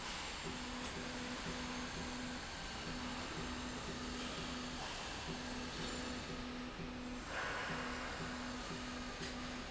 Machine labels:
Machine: slide rail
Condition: normal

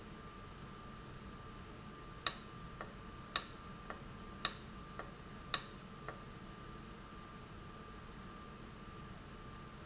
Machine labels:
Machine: valve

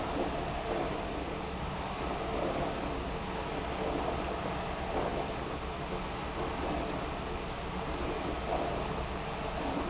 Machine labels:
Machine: pump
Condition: abnormal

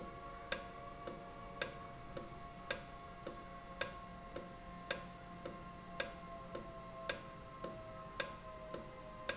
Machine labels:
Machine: valve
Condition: normal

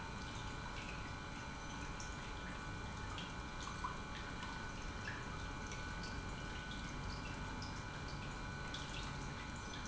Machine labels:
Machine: pump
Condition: normal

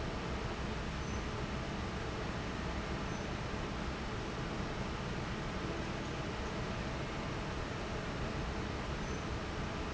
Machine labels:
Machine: fan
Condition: normal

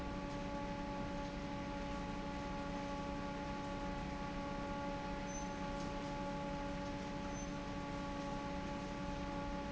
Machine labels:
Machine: fan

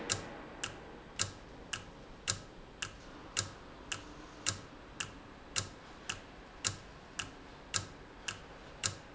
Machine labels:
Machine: valve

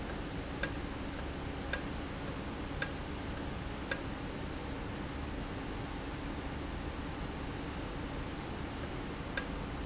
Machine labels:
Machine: valve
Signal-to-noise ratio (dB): -6 dB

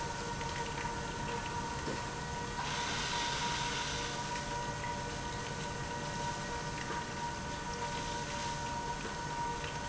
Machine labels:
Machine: pump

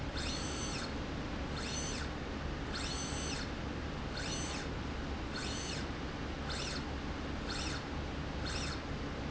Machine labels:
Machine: slide rail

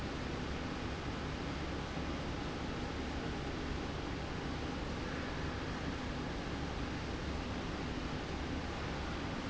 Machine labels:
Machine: slide rail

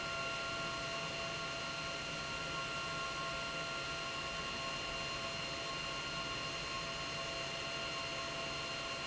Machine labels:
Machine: pump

